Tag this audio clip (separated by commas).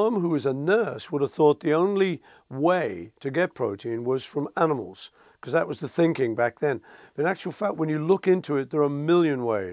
Speech